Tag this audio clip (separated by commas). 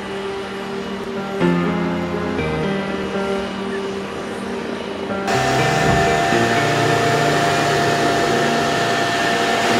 Music, Vehicle